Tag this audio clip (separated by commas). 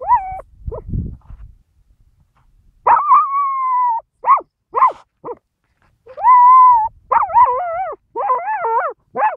coyote howling